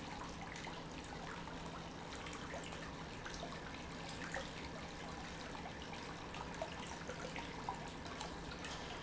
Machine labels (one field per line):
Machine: pump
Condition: normal